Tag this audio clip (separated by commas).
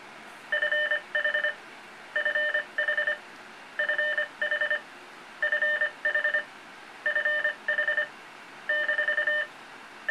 Radio